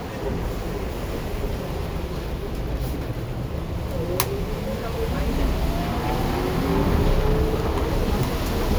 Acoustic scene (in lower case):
bus